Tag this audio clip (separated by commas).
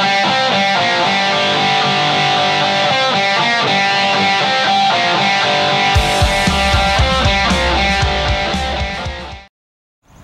Music